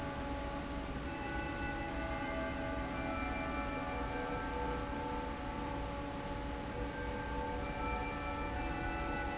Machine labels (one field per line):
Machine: fan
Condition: normal